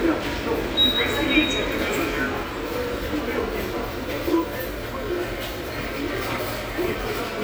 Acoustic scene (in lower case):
subway station